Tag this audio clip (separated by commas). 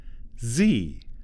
Speech, Human voice, man speaking